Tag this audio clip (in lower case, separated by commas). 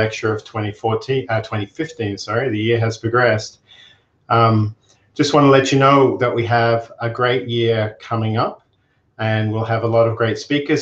speech